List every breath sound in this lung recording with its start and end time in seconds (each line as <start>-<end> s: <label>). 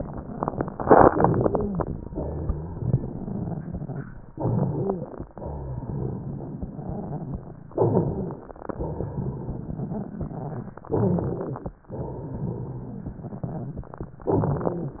1.07-2.04 s: inhalation
1.32-1.84 s: stridor
2.08-4.07 s: crackles
2.12-4.06 s: exhalation
4.30-5.27 s: inhalation
4.42-5.07 s: stridor
5.31-7.50 s: exhalation
5.37-7.47 s: crackles
7.69-8.66 s: inhalation
7.79-8.44 s: stridor
8.66-10.85 s: exhalation
8.70-10.80 s: crackles
10.87-11.83 s: inhalation
10.94-11.60 s: stridor
11.91-14.08 s: crackles
11.91-14.11 s: exhalation
14.22-15.00 s: inhalation
14.27-14.93 s: stridor